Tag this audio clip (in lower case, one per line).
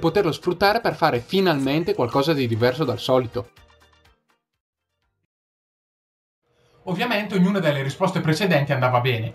music
speech